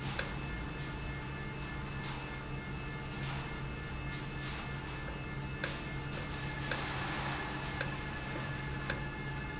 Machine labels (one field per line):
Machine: valve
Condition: normal